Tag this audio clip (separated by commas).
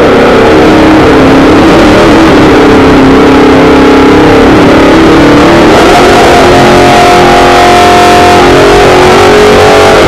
Engine